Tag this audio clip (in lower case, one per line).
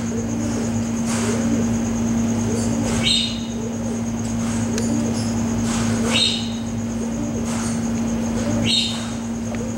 snake
animal